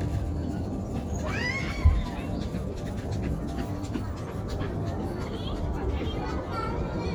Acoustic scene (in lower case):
residential area